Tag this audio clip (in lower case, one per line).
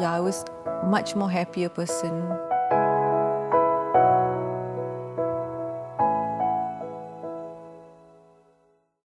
music
speech